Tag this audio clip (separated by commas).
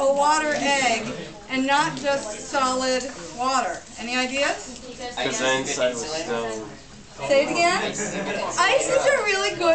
Speech